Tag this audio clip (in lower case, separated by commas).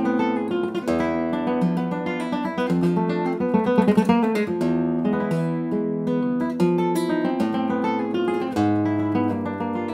music, guitar, playing acoustic guitar, acoustic guitar, flamenco, musical instrument